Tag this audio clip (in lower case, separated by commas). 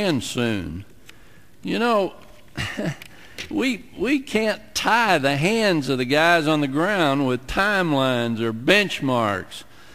speech, man speaking, narration